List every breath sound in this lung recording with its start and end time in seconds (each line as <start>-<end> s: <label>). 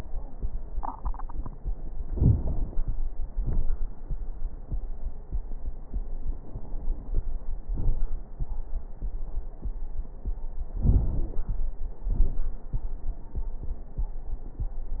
2.08-2.96 s: inhalation
2.08-2.96 s: crackles
3.40-3.68 s: exhalation
3.40-3.68 s: crackles
10.84-11.60 s: inhalation
10.84-11.60 s: crackles
12.09-12.59 s: exhalation
12.09-12.59 s: crackles